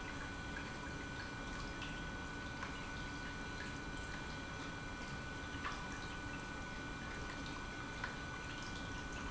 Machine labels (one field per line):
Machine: pump